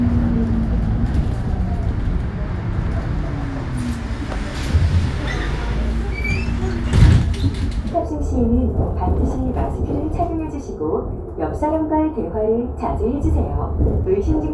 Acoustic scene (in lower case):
bus